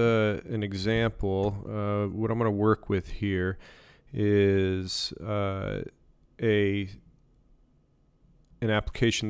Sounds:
speech

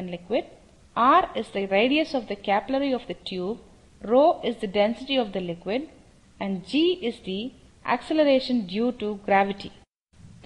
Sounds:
speech

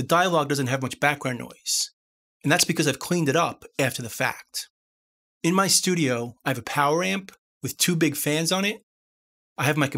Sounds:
speech

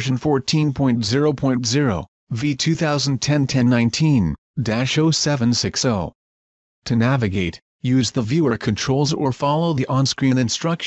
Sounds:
speech

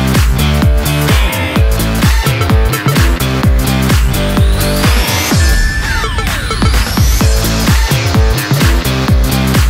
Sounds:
music

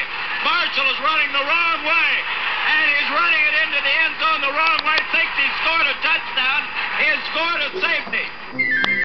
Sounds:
speech

